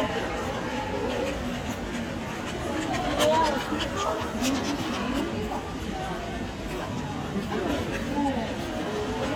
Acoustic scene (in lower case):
crowded indoor space